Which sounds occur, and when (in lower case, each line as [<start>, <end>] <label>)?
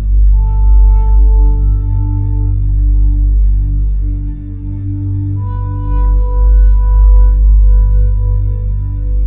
[0.00, 9.25] music